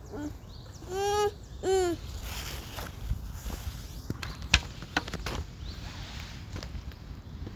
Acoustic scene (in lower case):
park